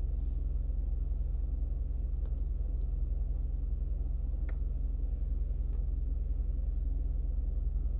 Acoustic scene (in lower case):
car